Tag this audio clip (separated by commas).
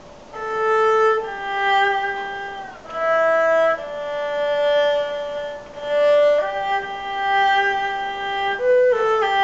playing erhu